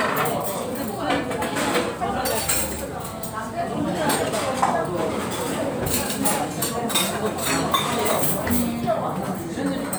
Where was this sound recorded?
in a restaurant